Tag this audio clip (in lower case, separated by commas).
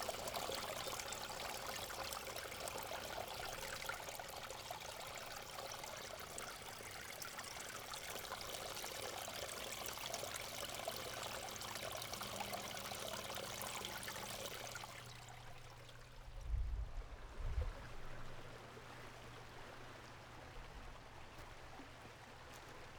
water, stream